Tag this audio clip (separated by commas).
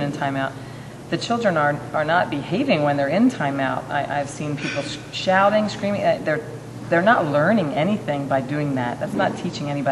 Speech